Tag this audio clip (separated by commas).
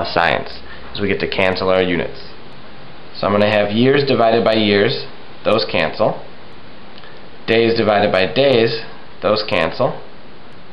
Speech